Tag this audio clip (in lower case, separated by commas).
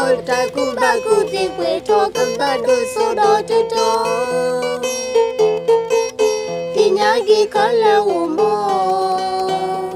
pizzicato, zither